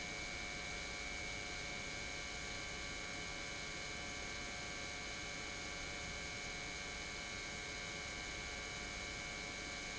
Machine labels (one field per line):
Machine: pump